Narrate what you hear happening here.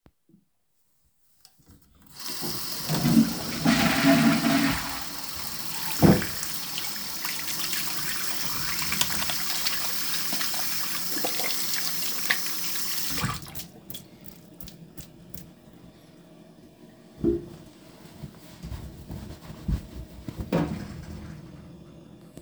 Flushed the toilet and wshed my hands using the running watter, after wash I shook my hands and proceeded to dry them using a towel